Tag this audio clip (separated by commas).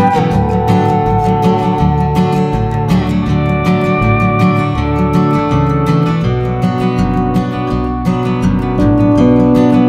Guitar, Music